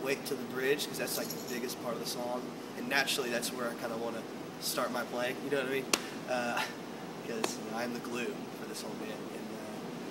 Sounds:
tambourine, musical instrument, speech

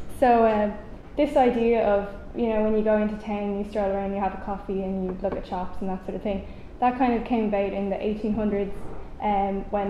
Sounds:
speech

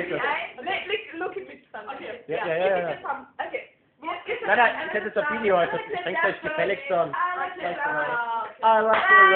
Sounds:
female singing, speech

